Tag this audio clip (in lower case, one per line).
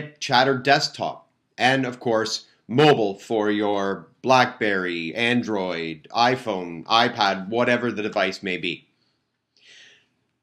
speech